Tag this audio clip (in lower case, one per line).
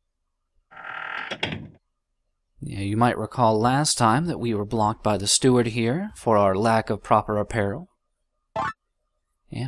speech